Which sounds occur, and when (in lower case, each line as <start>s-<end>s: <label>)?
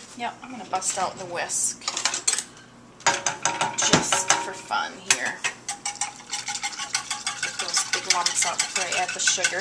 0.0s-9.6s: mechanisms
5.8s-6.1s: dishes, pots and pans
6.3s-9.6s: stir
8.1s-9.6s: female speech